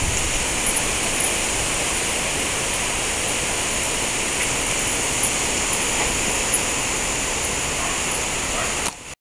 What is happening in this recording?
Metal is clinking together